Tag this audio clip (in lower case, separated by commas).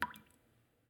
raindrop, rain, liquid, water, drip